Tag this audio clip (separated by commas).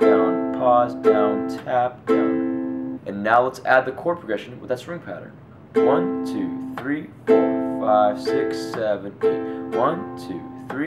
playing ukulele